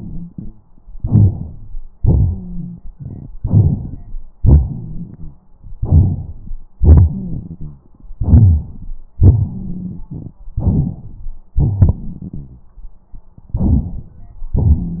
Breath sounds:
Inhalation: 0.95-1.73 s, 3.41-4.25 s, 5.76-6.66 s, 8.17-8.94 s, 10.59-11.38 s, 13.54-14.48 s
Exhalation: 1.97-2.90 s, 4.39-5.46 s, 6.78-8.14 s, 9.19-10.38 s, 11.59-12.69 s
Wheeze: 2.29-2.85 s, 9.52-10.02 s
Rhonchi: 4.39-5.42 s, 6.78-7.88 s, 11.55-12.64 s

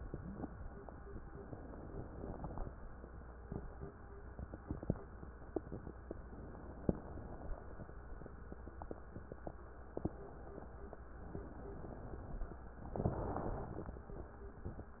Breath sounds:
Inhalation: 1.42-2.68 s, 6.19-6.91 s, 11.33-12.58 s
Exhalation: 6.91-7.59 s

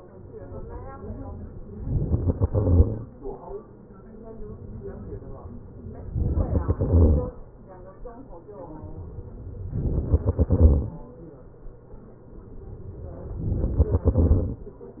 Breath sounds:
Inhalation: 1.76-2.27 s, 5.76-6.52 s, 8.99-10.14 s, 12.93-13.86 s
Exhalation: 2.27-3.38 s, 6.52-7.66 s, 10.14-11.33 s, 13.86-14.73 s

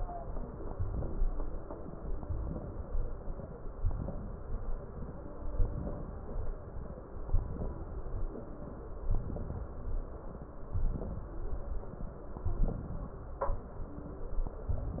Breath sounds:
Inhalation: 0.70-1.35 s, 2.24-2.89 s, 3.83-4.48 s, 5.67-6.32 s, 7.39-8.04 s, 9.08-9.73 s, 10.75-11.39 s, 12.54-13.19 s

